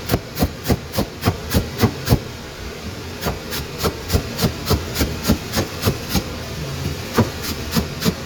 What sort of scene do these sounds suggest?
kitchen